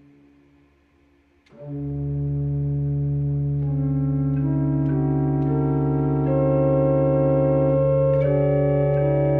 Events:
[0.00, 0.48] music
[0.00, 9.35] background noise
[1.41, 9.35] music

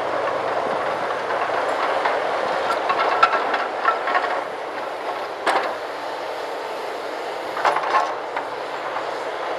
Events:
[0.00, 9.55] heavy engine (low frequency)
[0.00, 9.55] wind
[0.54, 0.97] wind noise (microphone)
[1.70, 2.04] generic impact sounds
[2.37, 2.54] wind noise (microphone)
[2.60, 4.34] generic impact sounds
[4.68, 4.83] generic impact sounds
[4.99, 5.23] generic impact sounds
[5.40, 5.66] generic impact sounds
[7.57, 8.10] generic impact sounds
[8.31, 8.41] generic impact sounds
[8.88, 9.02] generic impact sounds

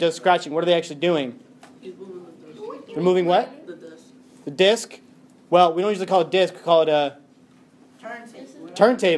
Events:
[0.00, 1.31] male speech
[0.00, 9.15] conversation
[0.00, 9.15] mechanisms
[1.59, 1.69] tick
[1.80, 4.13] female speech
[2.84, 3.52] male speech
[2.87, 2.97] tick
[3.77, 3.88] tick
[4.43, 4.97] male speech
[5.03, 5.11] tick
[5.26, 5.37] tick
[5.50, 7.16] male speech
[7.48, 7.62] tick
[7.92, 9.15] female speech

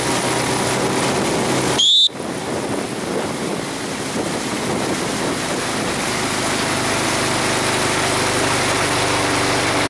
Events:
[0.00, 1.74] wind noise (microphone)
[0.00, 1.76] water
[0.00, 9.85] canoe
[1.75, 2.05] whistling
[2.04, 9.85] water
[2.09, 9.83] wind noise (microphone)

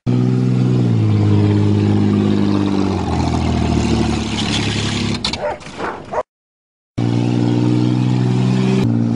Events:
[0.03, 6.22] car
[5.11, 6.17] bark
[6.99, 9.15] car

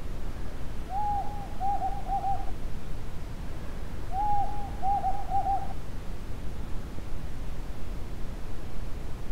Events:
[0.00, 9.31] background noise
[4.80, 5.70] hoot

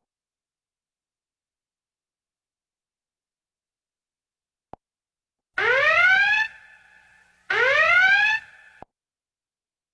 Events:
[5.50, 8.88] siren
[6.47, 7.46] mechanisms

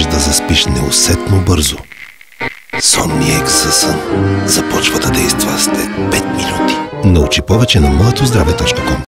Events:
[0.00, 1.81] male speech
[0.00, 9.04] distortion
[0.00, 9.04] music
[2.71, 3.89] male speech
[4.44, 5.86] male speech
[6.88, 9.04] male speech

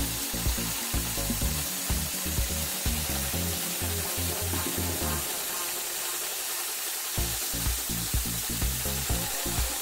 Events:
[0.00, 6.68] music
[0.00, 9.81] sewing machine
[7.20, 9.81] music

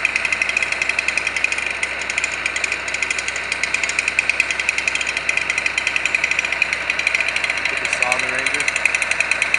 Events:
[0.00, 9.55] jackhammer
[0.00, 9.55] wind
[7.69, 8.64] male speech

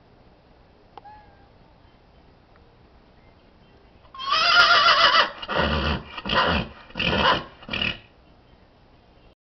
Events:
[0.00, 9.37] wind
[0.93, 1.04] generic impact sounds
[1.05, 1.48] horse
[1.64, 2.31] woman speaking
[3.19, 4.12] woman speaking
[4.15, 5.26] neigh
[5.32, 8.10] snort (horse)
[8.25, 8.69] woman speaking
[8.91, 9.36] woman speaking

